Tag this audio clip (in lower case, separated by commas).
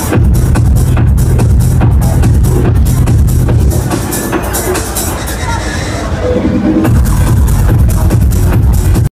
speech, music